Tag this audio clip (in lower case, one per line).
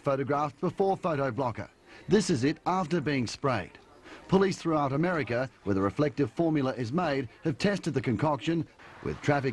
speech